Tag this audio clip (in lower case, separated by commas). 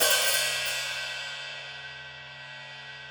percussion, cymbal, music, hi-hat, musical instrument